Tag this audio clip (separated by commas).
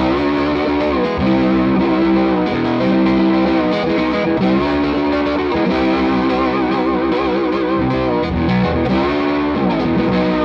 playing steel guitar